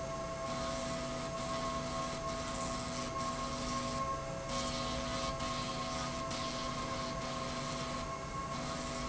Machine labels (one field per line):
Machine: slide rail